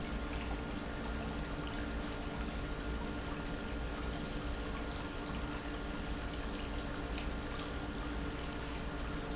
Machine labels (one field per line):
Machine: pump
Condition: normal